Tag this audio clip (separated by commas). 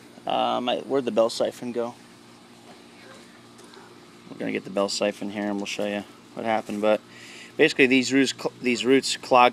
Speech